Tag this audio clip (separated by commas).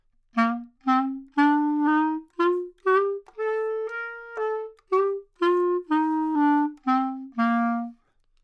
Wind instrument, Musical instrument, Music